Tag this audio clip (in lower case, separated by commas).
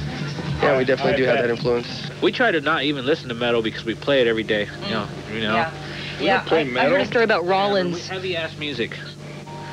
speech